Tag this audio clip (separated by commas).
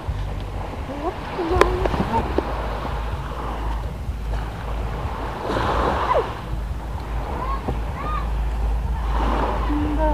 outside, rural or natural, Speech